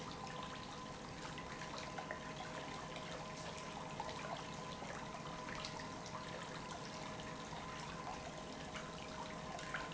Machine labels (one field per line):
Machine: pump